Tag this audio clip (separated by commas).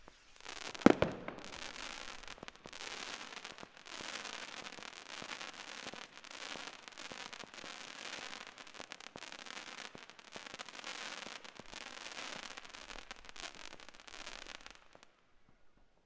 Explosion, Fireworks